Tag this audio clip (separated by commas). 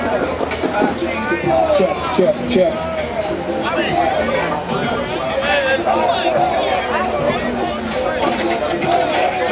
Speech